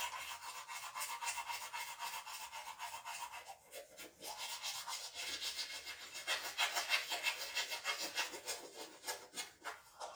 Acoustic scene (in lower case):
restroom